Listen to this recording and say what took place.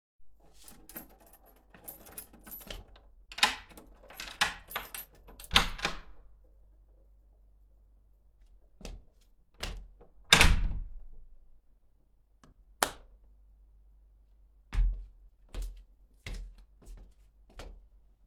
I entered the house: open the door with keys and turned on the lights